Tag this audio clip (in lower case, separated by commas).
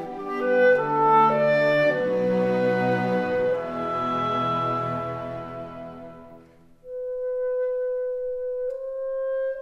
flute, music